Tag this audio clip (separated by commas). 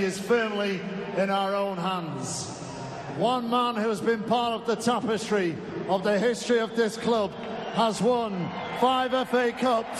man speaking, Speech, Narration